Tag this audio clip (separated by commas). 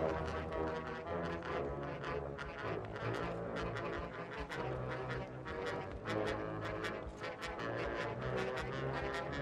Music